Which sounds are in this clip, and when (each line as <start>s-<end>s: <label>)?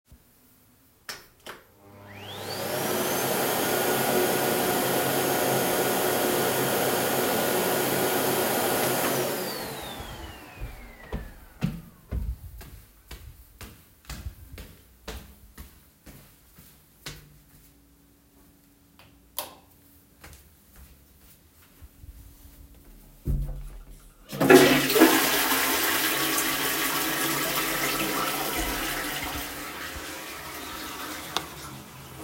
1.7s-12.9s: vacuum cleaner
11.0s-18.0s: footsteps
24.2s-32.2s: toilet flushing